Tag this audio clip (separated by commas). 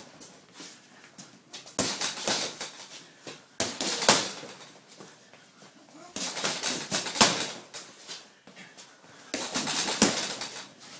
inside a small room